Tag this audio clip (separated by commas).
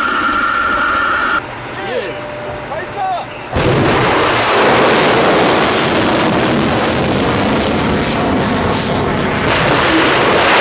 missile launch